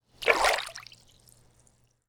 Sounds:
splatter, water, liquid

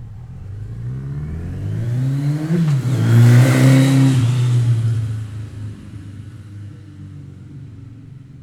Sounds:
motor vehicle (road), motorcycle, vehicle

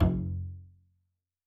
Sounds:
musical instrument, music, bowed string instrument

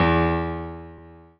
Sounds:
musical instrument, music, keyboard (musical), piano

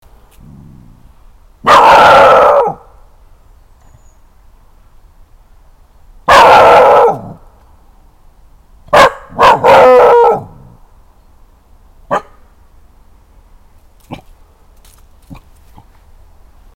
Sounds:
dog, animal, bark, pets

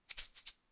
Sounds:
music, percussion, musical instrument, rattle (instrument)

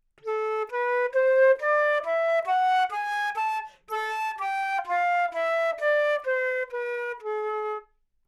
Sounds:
musical instrument, wind instrument, music

